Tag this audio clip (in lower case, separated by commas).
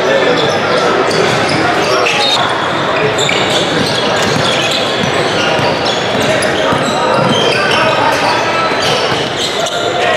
basketball bounce